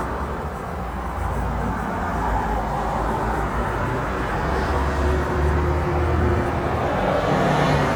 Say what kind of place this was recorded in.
street